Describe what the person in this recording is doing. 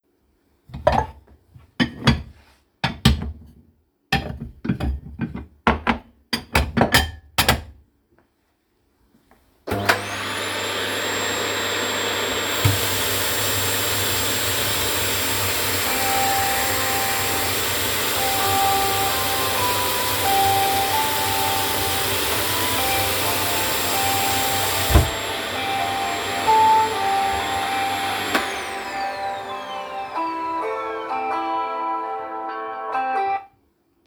I move some dishes around, a vacuum starts going in the background, I open the tap and the phone starts ringing while the vacuum is working and the water is running. I turn the water off and after some time also turn off the vacuum and only the phone ringtone can be heard until the recording ends.